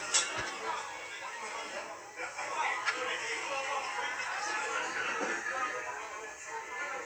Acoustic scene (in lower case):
restaurant